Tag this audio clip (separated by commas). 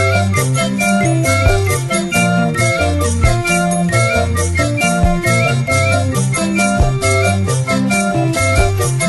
Jingle